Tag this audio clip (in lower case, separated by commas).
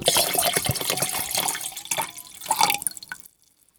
liquid